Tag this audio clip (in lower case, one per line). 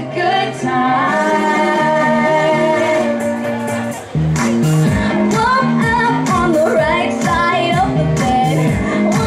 music
speech
female singing